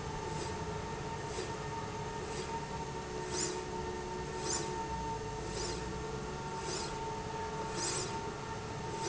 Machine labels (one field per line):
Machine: slide rail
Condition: normal